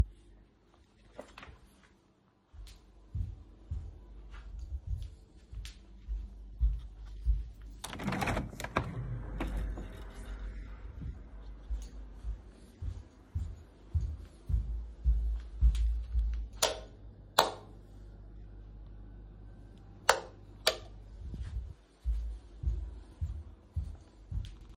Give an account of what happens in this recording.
I walked across my desk to open the window for air. Then I walked back to turn off and on 2 light switches and walked back to desk.